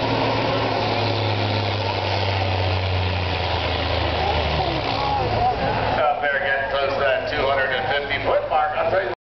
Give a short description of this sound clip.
A truck is passing by and a person speaks